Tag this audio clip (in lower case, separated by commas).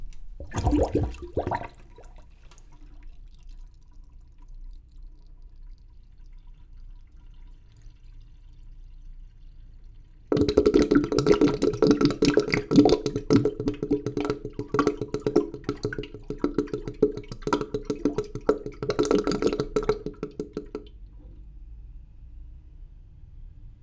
home sounds, trickle, gurgling, pour, water, sink (filling or washing), liquid